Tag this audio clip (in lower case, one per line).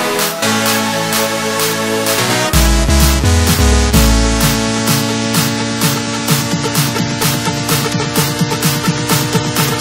electronic dance music
music